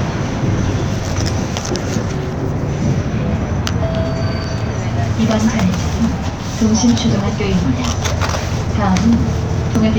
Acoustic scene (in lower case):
bus